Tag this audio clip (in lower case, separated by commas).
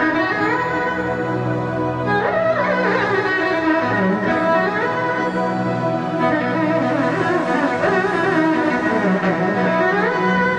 string section